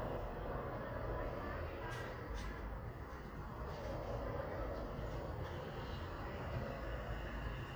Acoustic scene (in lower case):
residential area